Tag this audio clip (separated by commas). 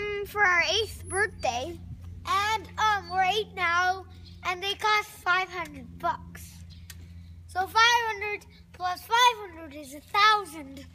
Speech